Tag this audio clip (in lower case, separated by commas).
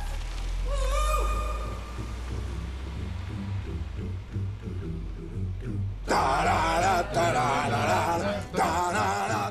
music